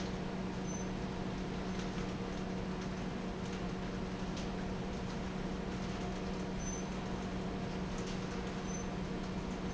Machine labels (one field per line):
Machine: fan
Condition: normal